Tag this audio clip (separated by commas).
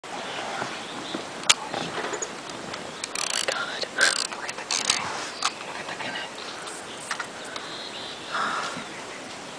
Animal, Speech